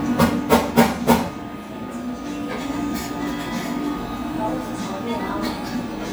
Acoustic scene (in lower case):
cafe